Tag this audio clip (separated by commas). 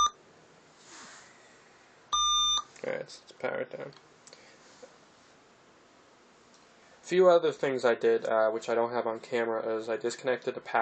inside a small room, Speech